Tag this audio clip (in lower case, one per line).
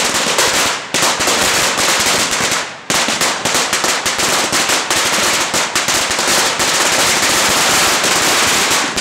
lighting firecrackers